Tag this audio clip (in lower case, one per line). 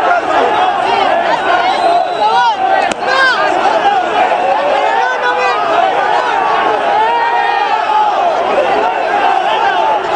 speech